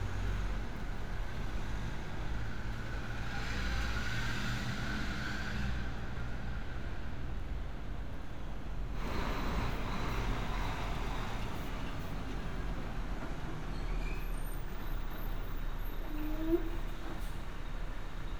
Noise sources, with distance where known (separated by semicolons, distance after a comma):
large-sounding engine